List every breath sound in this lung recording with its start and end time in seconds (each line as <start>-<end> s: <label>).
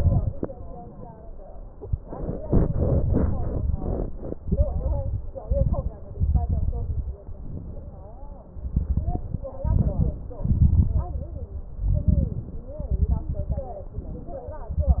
0.00-0.41 s: exhalation
0.00-0.41 s: crackles
4.37-5.22 s: exhalation
4.37-5.22 s: crackles
5.42-5.96 s: inhalation
5.42-5.96 s: crackles
6.18-7.18 s: exhalation
6.18-7.18 s: crackles
7.26-8.40 s: inhalation
8.66-9.52 s: exhalation
8.66-9.52 s: crackles
9.60-10.35 s: inhalation
9.60-10.35 s: crackles
10.45-11.49 s: exhalation
10.45-11.49 s: crackles
11.80-12.65 s: inhalation
11.80-12.65 s: crackles
12.81-13.66 s: exhalation
12.81-13.66 s: crackles
13.95-14.78 s: inhalation
14.78-15.00 s: exhalation
14.78-15.00 s: crackles